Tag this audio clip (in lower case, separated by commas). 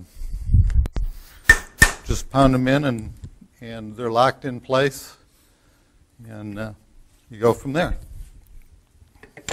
inside a small room, speech